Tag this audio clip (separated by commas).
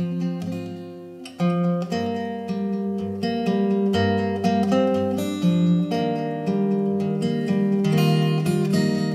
Guitar, Musical instrument, Music, Plucked string instrument